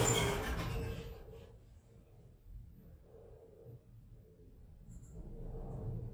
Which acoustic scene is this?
elevator